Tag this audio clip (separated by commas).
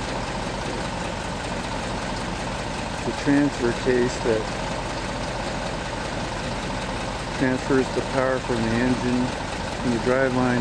Truck, Speech, Vehicle